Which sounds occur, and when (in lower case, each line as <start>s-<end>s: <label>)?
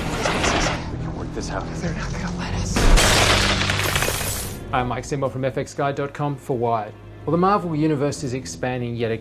0.0s-0.8s: sound effect
0.0s-9.2s: music
0.9s-2.7s: conversation
2.7s-4.6s: shatter